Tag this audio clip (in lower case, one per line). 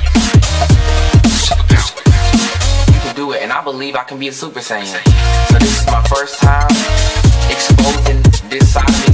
dubstep
music
speech